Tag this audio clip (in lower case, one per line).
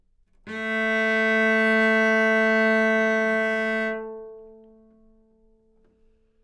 musical instrument
music
bowed string instrument